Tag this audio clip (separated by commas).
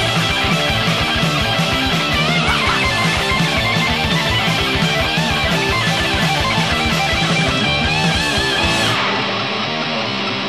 Heavy metal, Music